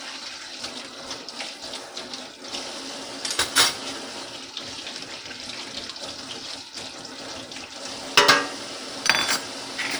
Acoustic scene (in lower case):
kitchen